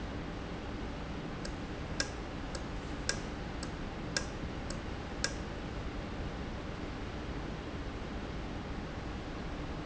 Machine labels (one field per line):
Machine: valve